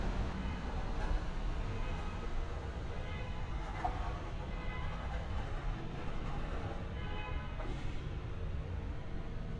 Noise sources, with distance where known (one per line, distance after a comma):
car alarm, far